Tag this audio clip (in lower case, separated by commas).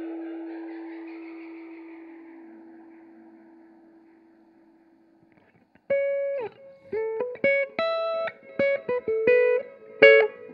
effects unit, musical instrument, guitar, music